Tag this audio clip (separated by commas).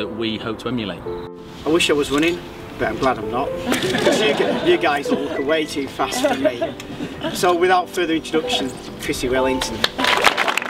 Music, Speech